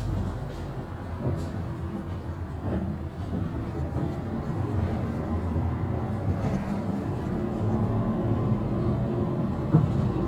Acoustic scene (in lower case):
bus